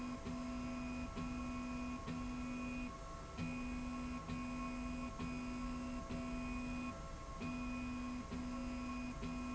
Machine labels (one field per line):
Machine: slide rail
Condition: normal